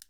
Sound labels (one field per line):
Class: switch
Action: being turned off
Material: plastic